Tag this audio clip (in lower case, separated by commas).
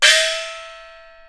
gong, music, musical instrument, percussion